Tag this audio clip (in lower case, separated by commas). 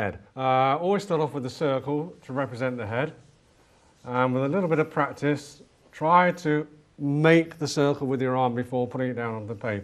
speech